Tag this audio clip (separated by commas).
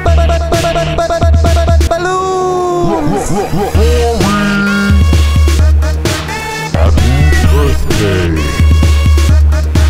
Electronica